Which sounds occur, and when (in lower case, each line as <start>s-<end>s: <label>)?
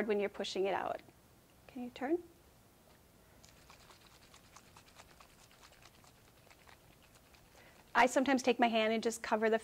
0.0s-0.9s: woman speaking
0.0s-9.6s: background noise
0.9s-1.1s: generic impact sounds
1.4s-1.5s: tick
1.6s-2.2s: woman speaking
2.8s-3.0s: generic impact sounds
3.4s-8.0s: spray
7.5s-7.8s: surface contact
7.9s-9.6s: woman speaking